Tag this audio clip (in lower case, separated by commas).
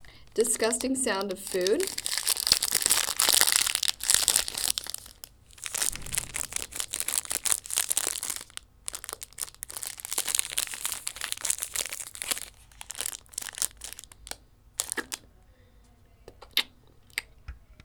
crinkling